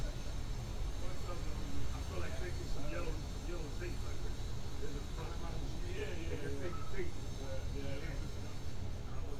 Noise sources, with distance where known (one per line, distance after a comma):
person or small group talking